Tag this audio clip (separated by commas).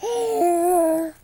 Human voice, Speech